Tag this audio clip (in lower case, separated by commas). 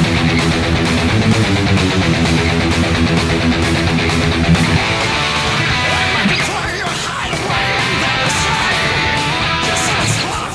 guitar, musical instrument, music, electric guitar, plucked string instrument